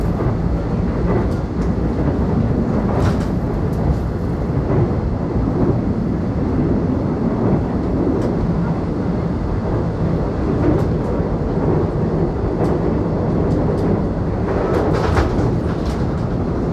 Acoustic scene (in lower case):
subway train